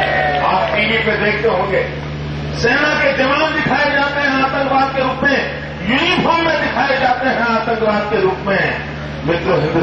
A man speaking to a large group with crowd cheering